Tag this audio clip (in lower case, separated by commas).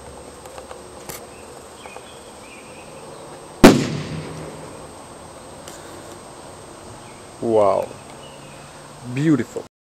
speech, explosion